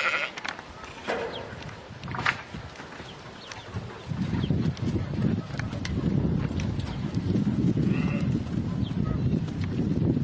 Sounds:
Bleat, Sheep

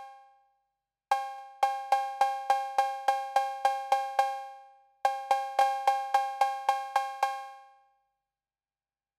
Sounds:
Cowbell

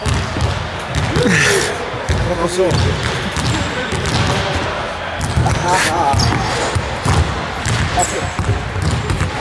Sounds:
Speech, Basketball bounce

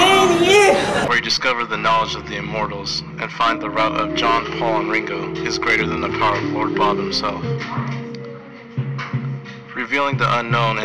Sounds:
Speech, Music

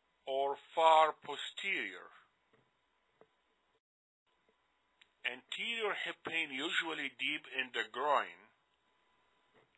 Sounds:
people coughing

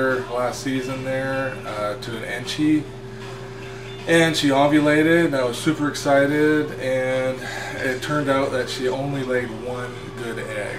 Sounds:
inside a large room or hall, Music, Speech

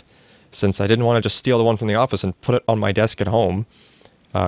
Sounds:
Speech

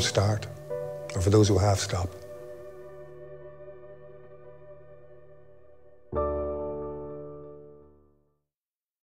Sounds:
Speech, Music

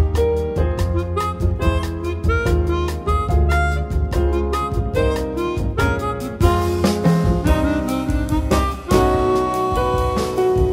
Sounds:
Harmonica, woodwind instrument

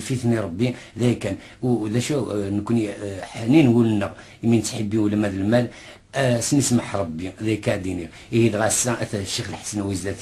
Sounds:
Speech

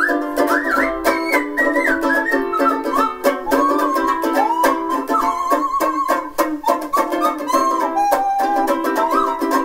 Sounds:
Ukulele, Music

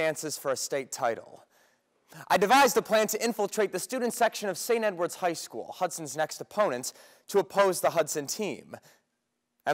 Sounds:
Speech, Male speech

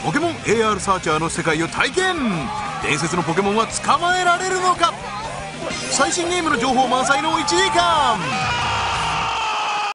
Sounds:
Speech, Music

